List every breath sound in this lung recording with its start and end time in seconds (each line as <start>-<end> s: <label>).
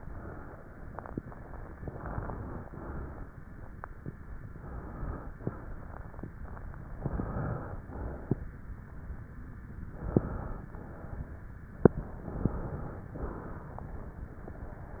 0.00-0.58 s: exhalation
1.82-2.64 s: inhalation
2.64-3.32 s: exhalation
4.50-5.36 s: inhalation
5.39-6.25 s: exhalation
6.95-7.81 s: inhalation
7.89-8.49 s: exhalation
9.83-10.69 s: inhalation
10.73-11.59 s: exhalation
12.20-13.05 s: inhalation
13.16-14.02 s: exhalation